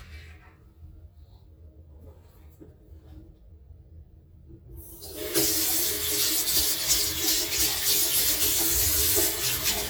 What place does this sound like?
restroom